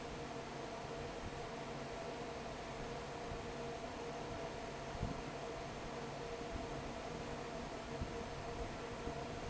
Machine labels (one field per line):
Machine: fan